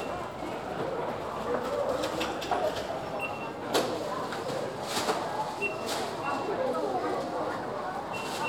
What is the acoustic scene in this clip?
crowded indoor space